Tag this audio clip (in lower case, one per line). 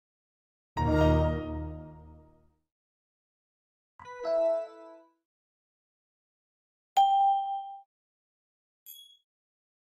ding